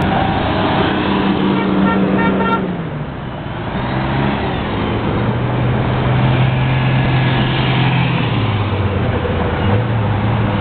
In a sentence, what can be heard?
A vehicle beeps its horn as another vehicle engine runs